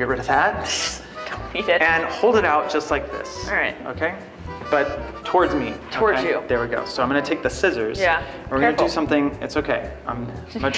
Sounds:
music, speech

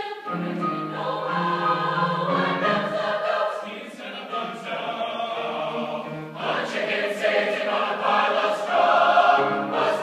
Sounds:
choir, music

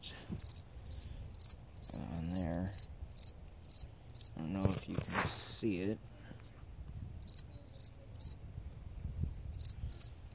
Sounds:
cricket chirping

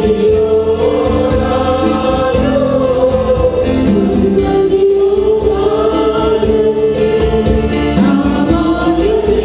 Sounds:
gospel music, music, choir

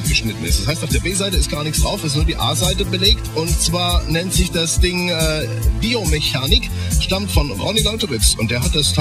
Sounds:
speech, sampler, music

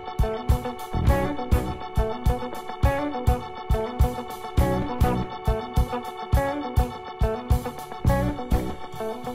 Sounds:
music

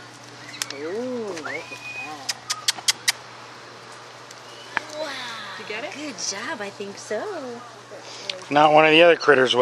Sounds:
pigeon, speech

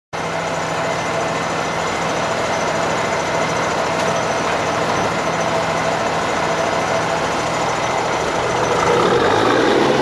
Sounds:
truck, vehicle

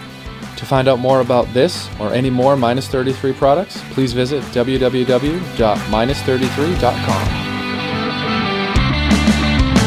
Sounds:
speech, music

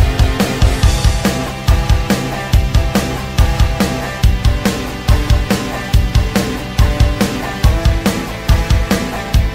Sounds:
music

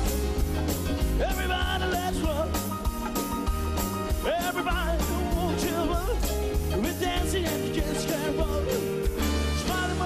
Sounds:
rock and roll, music

